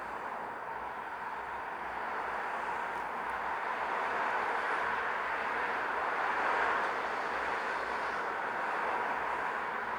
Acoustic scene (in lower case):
street